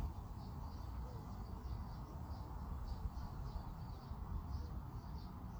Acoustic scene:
park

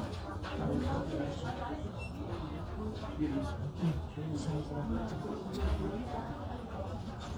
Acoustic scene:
crowded indoor space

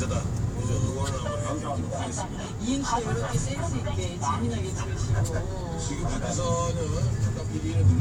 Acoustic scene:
car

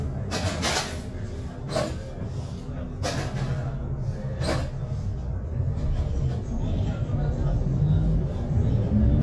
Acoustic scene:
bus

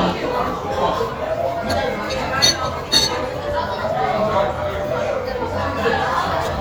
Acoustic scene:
crowded indoor space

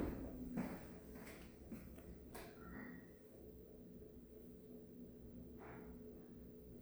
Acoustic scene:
elevator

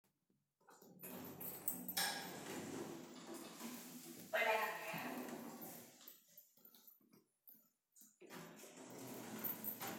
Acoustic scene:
elevator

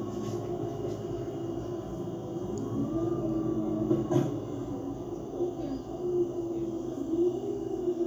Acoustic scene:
bus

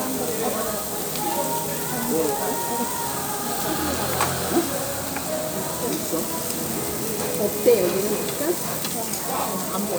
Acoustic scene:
restaurant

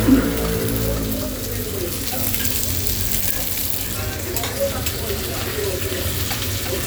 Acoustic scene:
restaurant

